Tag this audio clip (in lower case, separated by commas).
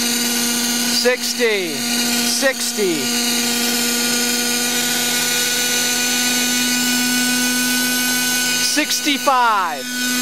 helicopter, speech